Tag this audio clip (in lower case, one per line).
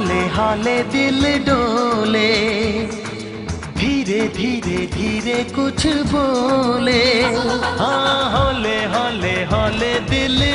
music of bollywood
music